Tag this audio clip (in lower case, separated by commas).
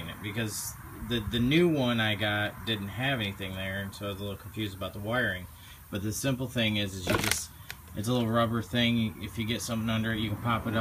speech